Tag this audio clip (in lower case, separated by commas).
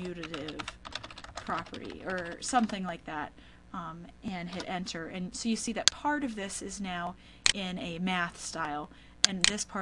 computer keyboard, typing